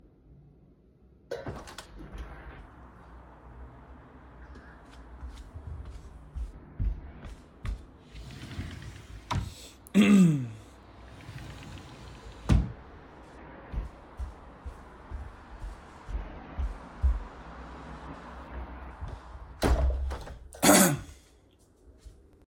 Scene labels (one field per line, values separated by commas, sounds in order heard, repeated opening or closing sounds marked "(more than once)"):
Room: bedroom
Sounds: window (more than once), footsteps, wardrobe or drawer (more than once)